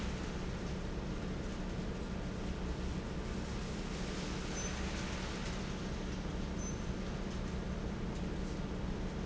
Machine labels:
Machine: fan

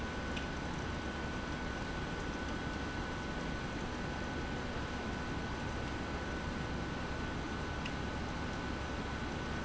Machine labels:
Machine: pump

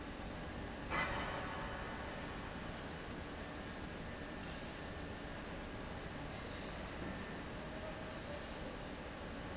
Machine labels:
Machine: fan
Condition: abnormal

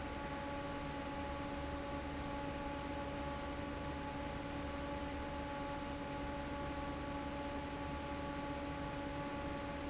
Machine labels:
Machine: fan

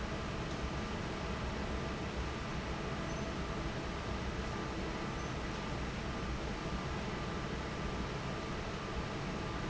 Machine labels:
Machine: fan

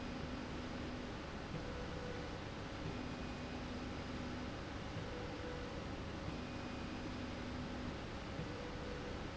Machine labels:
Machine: slide rail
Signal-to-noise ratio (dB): 0 dB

